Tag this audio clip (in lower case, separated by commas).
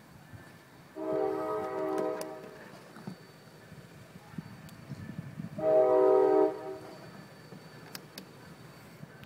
train horning, train horn